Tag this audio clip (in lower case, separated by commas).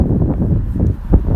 wind